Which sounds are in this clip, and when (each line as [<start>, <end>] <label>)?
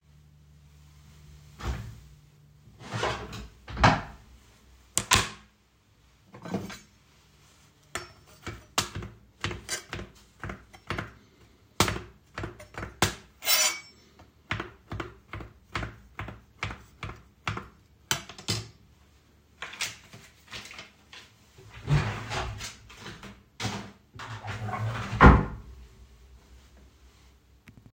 [1.55, 2.14] wardrobe or drawer
[6.32, 6.86] cutlery and dishes
[8.01, 11.28] cutlery and dishes
[13.41, 14.27] cutlery and dishes
[18.09, 18.78] cutlery and dishes
[21.58, 23.36] wardrobe or drawer
[24.17, 25.79] wardrobe or drawer